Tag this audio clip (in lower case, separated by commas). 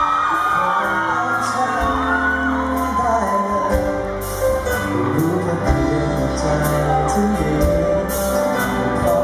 music